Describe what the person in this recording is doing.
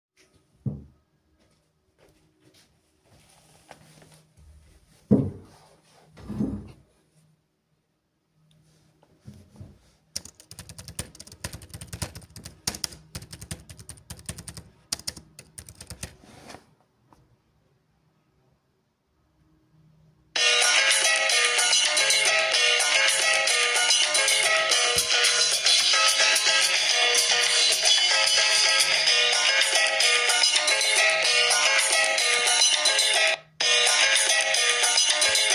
I sat at the desk. Then I started typing on my laptop keyboard,and my phone rang